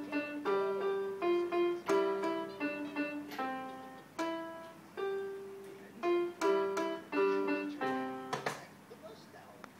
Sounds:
speech, music

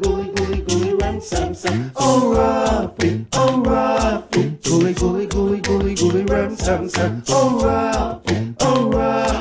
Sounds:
music

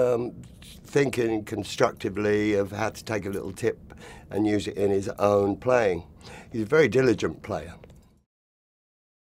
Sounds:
speech

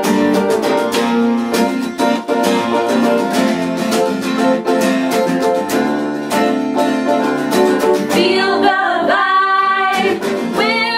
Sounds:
music

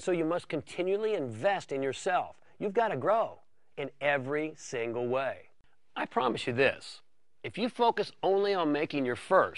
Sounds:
speech

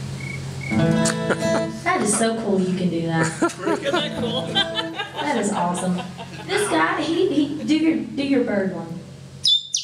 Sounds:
music, speech

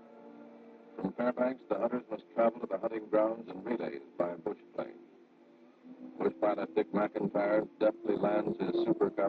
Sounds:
speech

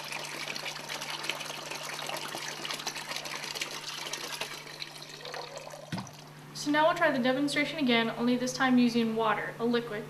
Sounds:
drip, inside a small room, speech

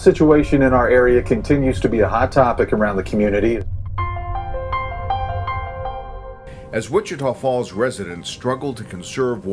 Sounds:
speech, music

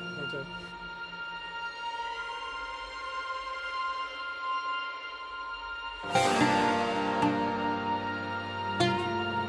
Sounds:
playing oboe

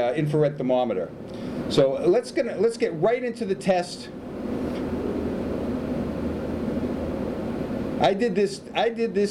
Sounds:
speech

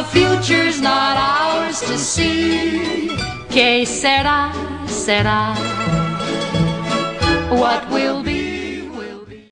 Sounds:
music

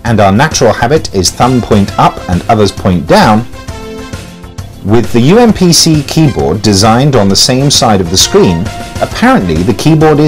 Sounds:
music, speech

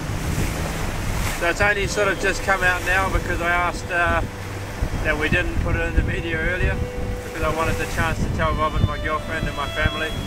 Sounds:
boat, wind noise (microphone), wind

